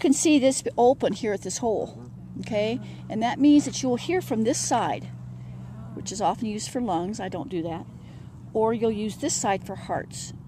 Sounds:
speech

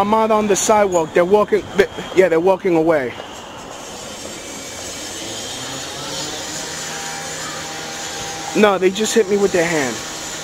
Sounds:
outside, urban or man-made, speech

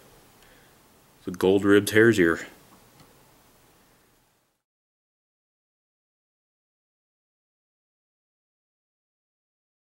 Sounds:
speech, silence

